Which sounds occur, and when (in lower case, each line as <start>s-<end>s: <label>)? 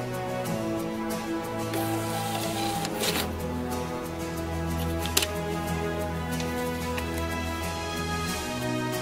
0.0s-9.0s: music
1.7s-1.8s: tick
2.0s-3.2s: cash register
2.8s-2.9s: tick
4.8s-4.8s: tick
5.0s-5.2s: tick
6.4s-6.4s: tick
6.8s-7.1s: paper rustling